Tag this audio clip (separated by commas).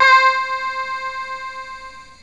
Musical instrument, Music, Keyboard (musical)